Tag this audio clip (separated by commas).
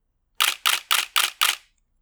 Camera, Mechanisms